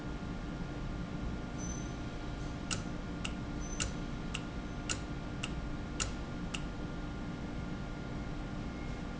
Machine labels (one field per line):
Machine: valve